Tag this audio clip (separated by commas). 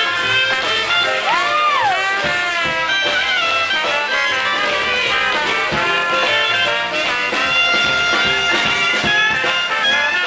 Music